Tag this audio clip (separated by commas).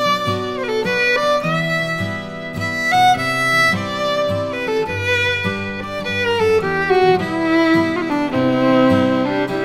fiddle, Musical instrument, Music